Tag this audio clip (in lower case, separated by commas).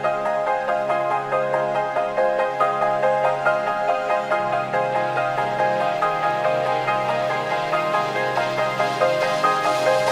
music, rhythm and blues, background music